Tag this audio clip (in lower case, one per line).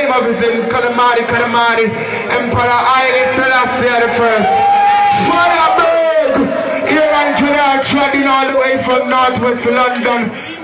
speech